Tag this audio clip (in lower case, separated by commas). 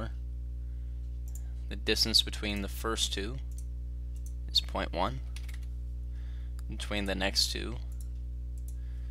speech